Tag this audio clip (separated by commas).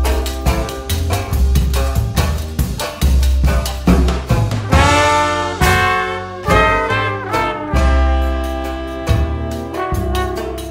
inside a small room, Music